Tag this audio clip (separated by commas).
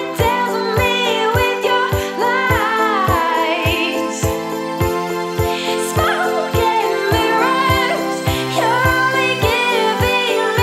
Music, Sampler